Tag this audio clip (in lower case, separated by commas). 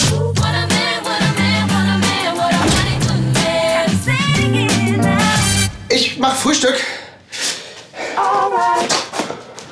music, speech